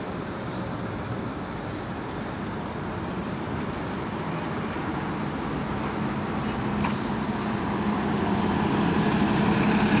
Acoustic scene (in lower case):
street